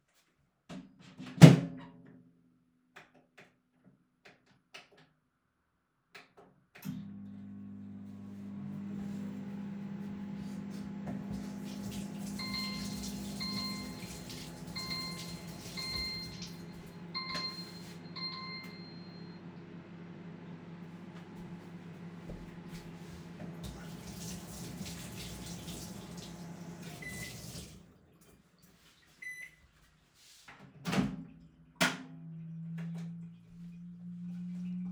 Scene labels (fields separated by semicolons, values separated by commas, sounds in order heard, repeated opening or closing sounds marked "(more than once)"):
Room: kitchen; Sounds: microwave, running water, phone ringing